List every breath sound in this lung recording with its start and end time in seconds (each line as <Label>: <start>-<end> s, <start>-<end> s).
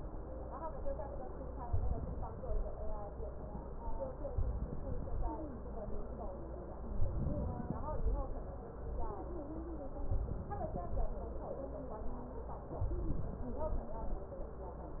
Inhalation: 1.61-2.69 s, 4.29-5.30 s, 6.97-8.05 s, 10.03-11.11 s, 12.79-13.87 s